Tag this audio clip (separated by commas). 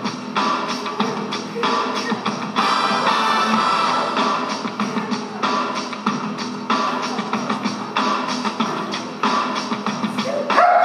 Speech, Music